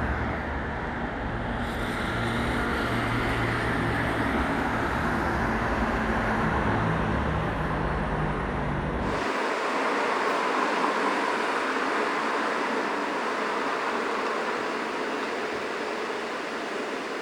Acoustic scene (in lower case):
street